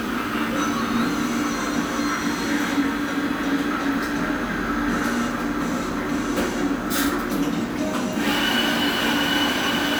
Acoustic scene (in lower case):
cafe